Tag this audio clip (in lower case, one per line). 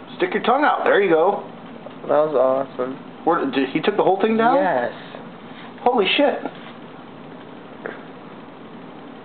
speech